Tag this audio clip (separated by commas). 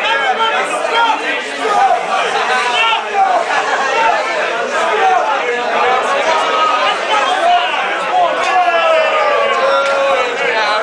Speech